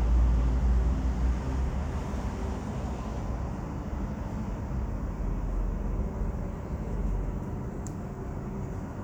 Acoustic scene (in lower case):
residential area